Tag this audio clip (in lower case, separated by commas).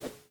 whoosh